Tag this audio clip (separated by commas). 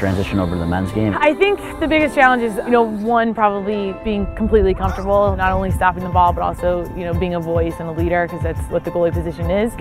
playing lacrosse